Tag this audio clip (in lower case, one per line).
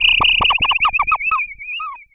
animal